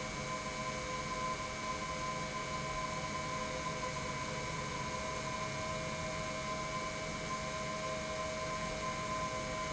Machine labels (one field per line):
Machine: pump